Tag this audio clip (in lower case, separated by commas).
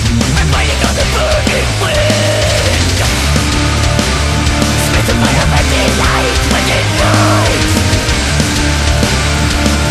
music, angry music